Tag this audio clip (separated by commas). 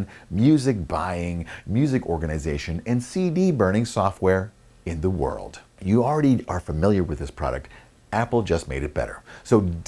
Speech